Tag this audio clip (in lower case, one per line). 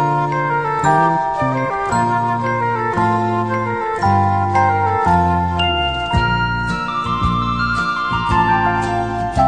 music